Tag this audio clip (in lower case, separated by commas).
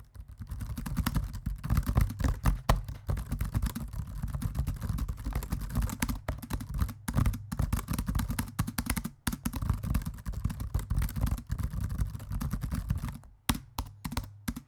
computer keyboard, typing, home sounds